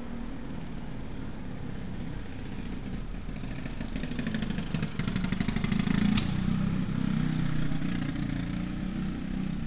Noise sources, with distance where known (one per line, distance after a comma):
engine of unclear size